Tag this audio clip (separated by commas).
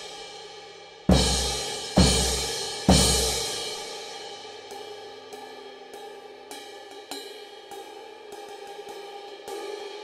Cymbal, playing cymbal, Music